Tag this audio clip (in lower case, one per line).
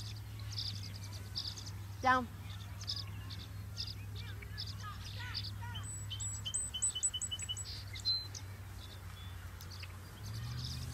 animal
domestic animals
outside, rural or natural
speech